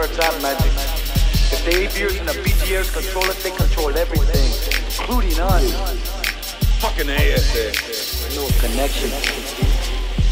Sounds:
Rapping, Hip hop music, Music

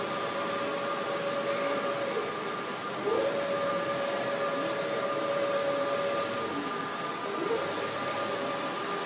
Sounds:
Printer

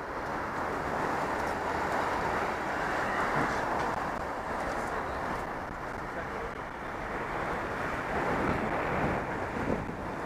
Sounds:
Speech

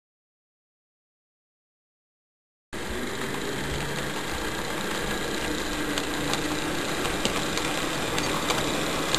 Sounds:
Rail transport, Train

